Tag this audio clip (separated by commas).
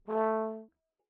Brass instrument, Musical instrument, Music